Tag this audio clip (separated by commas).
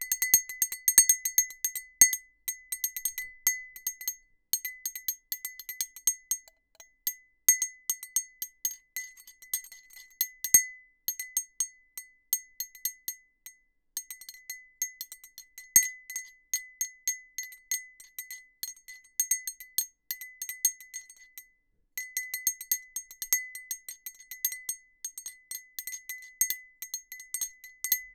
clink, Glass